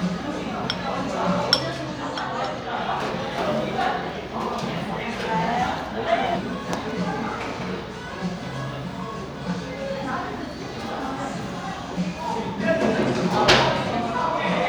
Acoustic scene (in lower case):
cafe